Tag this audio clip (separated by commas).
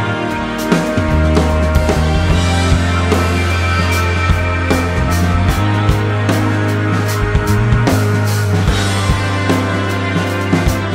Music